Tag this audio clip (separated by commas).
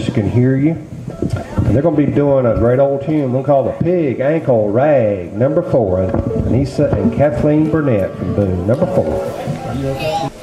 Speech